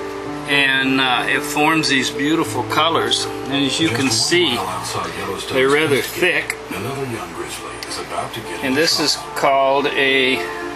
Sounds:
music, speech

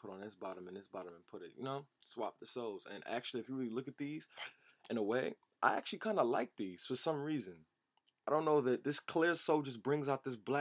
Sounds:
speech

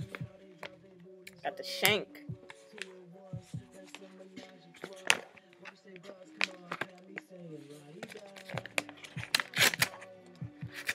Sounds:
music, speech

